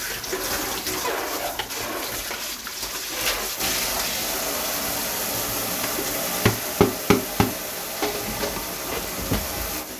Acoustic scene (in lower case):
kitchen